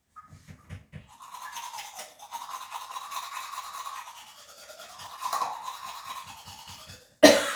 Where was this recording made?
in a restroom